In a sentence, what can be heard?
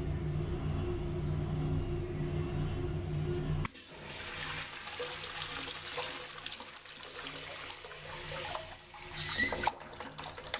Following some low level noises, a toilet flush is heard